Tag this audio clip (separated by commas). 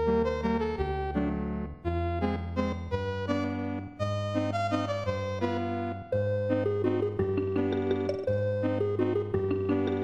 Exciting music, Middle Eastern music, Music